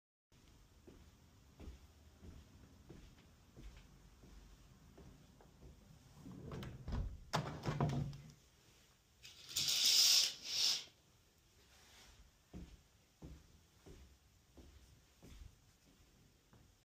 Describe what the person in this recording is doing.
I walked to the window to close it and move the curtains. Then, I moved back to my working place